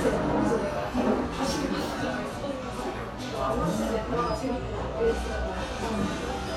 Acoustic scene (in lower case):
cafe